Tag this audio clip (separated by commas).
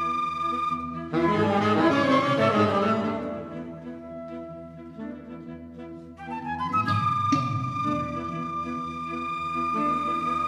Flute, Music, Musical instrument